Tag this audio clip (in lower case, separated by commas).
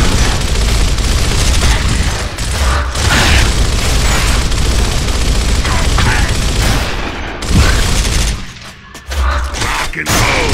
speech, inside a large room or hall